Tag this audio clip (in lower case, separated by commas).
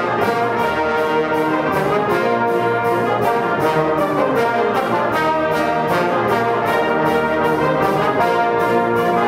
musical instrument, trombone, music